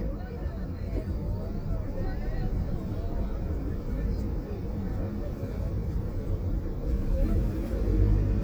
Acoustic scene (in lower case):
car